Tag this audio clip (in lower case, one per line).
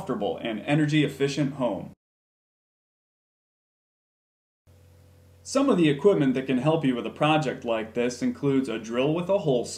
speech